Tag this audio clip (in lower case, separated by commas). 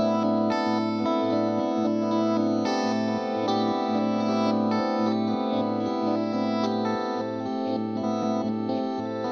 effects unit, guitar, music, musical instrument, plucked string instrument